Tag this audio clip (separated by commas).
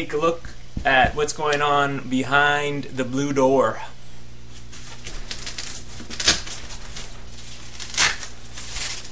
Speech